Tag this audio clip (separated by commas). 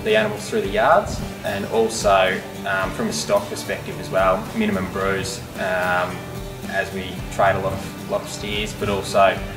Music, Speech